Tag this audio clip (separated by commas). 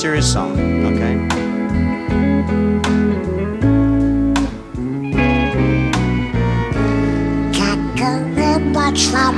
Singing, Speech, Music, Country, slide guitar